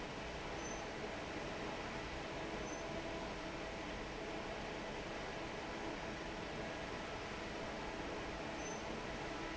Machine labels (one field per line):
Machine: fan